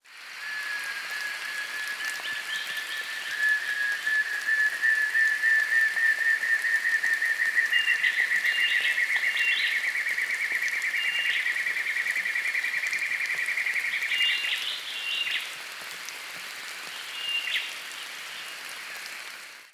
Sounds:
Water, Rain

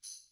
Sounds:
Music, Percussion, Tambourine, Musical instrument

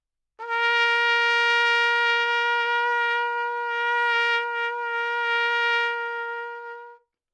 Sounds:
Music, Brass instrument, Musical instrument, Trumpet

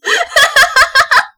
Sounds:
Laughter, Human voice

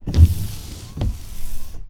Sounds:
Motor vehicle (road), Vehicle, Car

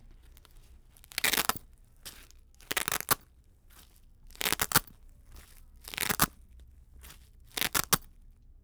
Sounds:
home sounds

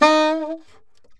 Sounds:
woodwind instrument, Music, Musical instrument

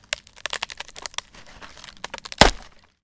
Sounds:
Wood, Crack

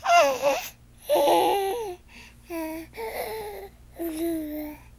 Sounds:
Human voice, Speech

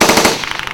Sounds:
gunfire, Explosion

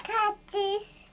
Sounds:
Speech, Human voice

